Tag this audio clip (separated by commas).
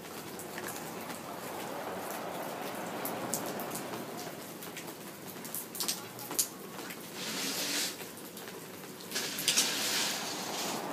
Water, Rain, Rain on surface, Raindrop